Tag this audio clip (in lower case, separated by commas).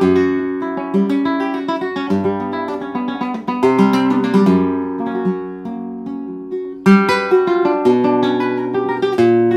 acoustic guitar, guitar, flamenco, music, musical instrument, plucked string instrument